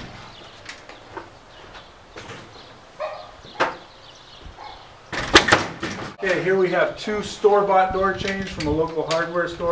Doors shutting and a male talking